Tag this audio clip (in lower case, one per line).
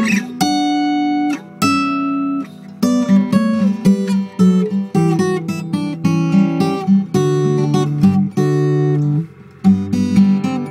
guitar
strum
musical instrument
music
plucked string instrument
acoustic guitar